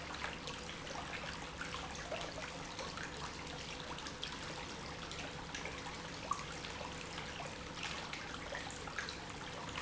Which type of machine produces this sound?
pump